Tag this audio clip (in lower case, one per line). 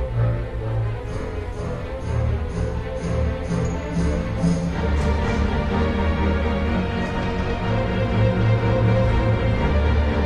music